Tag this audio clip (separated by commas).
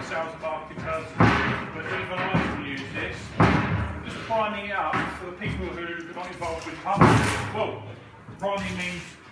Speech